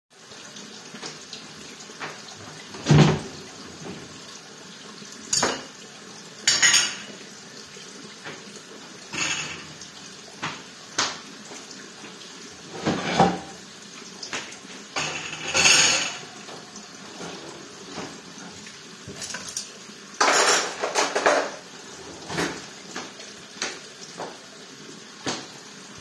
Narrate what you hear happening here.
While water was pouring into the pot, I opened the cupboard and put the dishes there. Didn't close it. Then I opened a drawer and put the cuttlery there. Closed it afterwards. All this time I am walking around the kitchen.